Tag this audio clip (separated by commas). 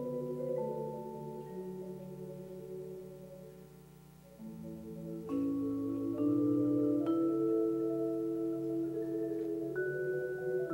Percussion, Music, Tubular bells